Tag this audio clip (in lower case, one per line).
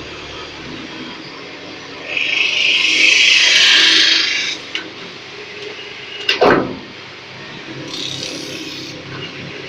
lathe spinning